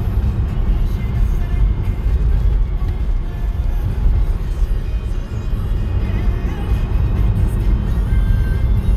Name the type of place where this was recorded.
car